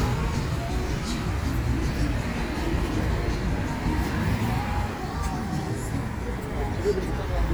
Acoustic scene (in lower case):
street